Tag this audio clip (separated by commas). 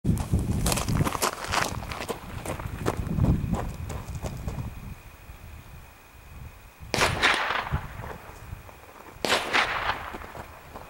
Gunshot